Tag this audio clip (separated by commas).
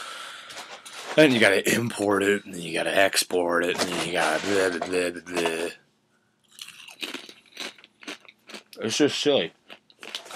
Speech